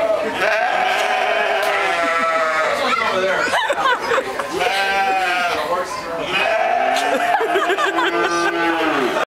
Multiple sheep are making noise, people laugh about the noise